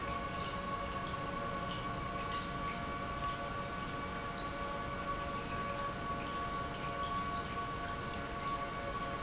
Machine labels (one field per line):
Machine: pump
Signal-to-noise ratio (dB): -6 dB